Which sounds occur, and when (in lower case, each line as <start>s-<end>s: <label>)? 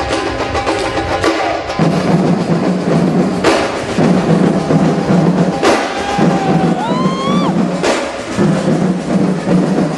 0.0s-9.9s: music
5.8s-6.4s: shout
6.7s-7.5s: whoop